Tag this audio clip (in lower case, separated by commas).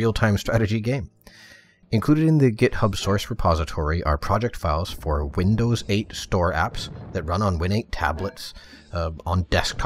speech